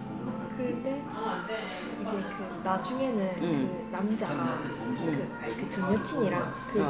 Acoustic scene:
crowded indoor space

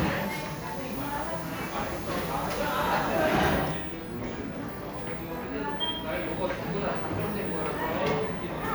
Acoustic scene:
cafe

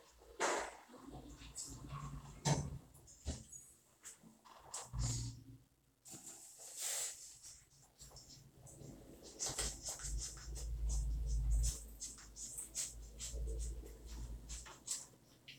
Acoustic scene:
elevator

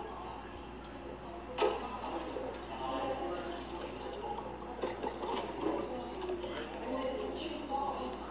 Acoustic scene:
cafe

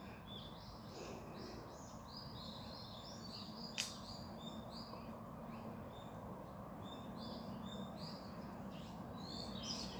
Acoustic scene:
park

